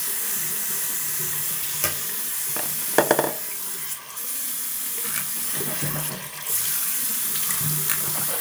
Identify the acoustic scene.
restroom